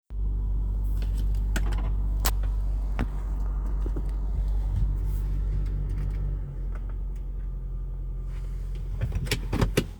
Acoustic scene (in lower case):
car